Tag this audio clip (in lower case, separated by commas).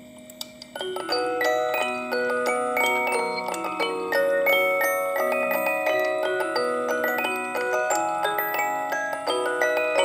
music, glockenspiel